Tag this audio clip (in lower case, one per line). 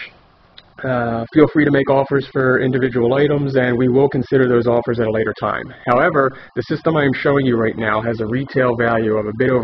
speech